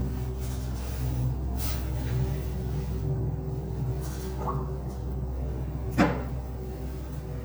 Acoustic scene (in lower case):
elevator